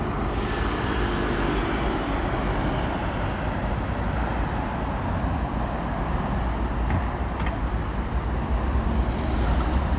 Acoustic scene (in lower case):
street